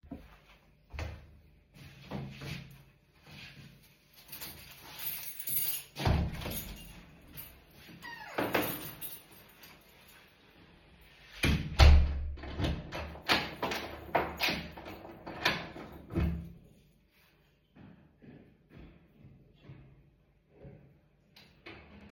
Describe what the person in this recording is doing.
I wore flip flops, opened to door, locked the house and left